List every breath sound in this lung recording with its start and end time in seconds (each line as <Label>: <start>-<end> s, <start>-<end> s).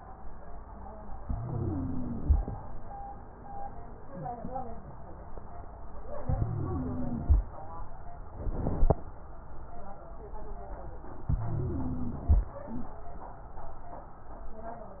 Inhalation: 1.23-2.54 s, 6.22-7.45 s, 11.23-12.46 s
Wheeze: 1.28-2.20 s, 6.31-7.23 s, 11.36-12.29 s